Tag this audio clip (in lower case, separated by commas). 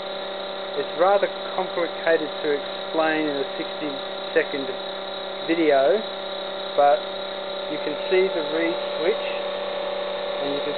speech